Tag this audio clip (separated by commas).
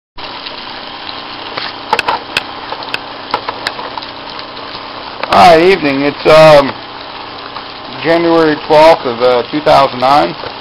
Speech